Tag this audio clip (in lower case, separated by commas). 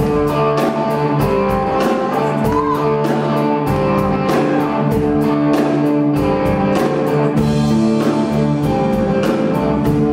music, plucked string instrument, strum, acoustic guitar, musical instrument, bass guitar, guitar